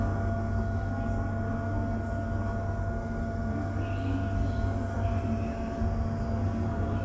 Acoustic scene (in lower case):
subway station